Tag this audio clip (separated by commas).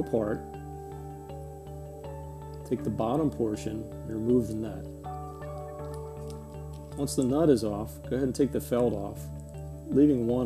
Speech, Music